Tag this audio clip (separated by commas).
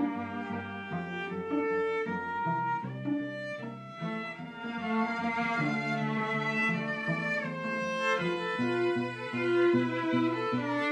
Cello, Bowed string instrument, Double bass